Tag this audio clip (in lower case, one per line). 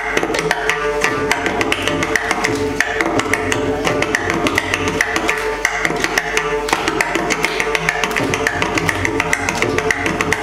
tabla
percussion
drum